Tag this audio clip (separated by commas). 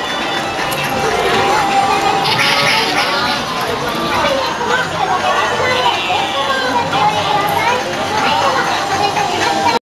Speech